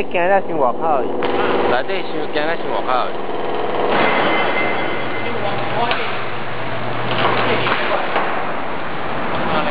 Men speaking and clanking